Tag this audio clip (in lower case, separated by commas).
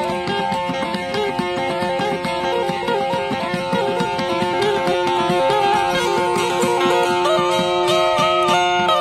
playing banjo